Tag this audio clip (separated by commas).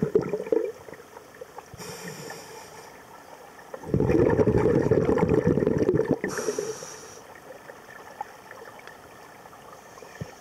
scuba diving